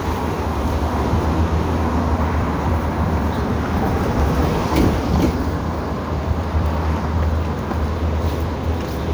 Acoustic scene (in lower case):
street